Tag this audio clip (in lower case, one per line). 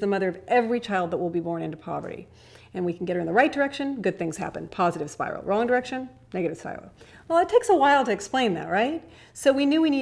speech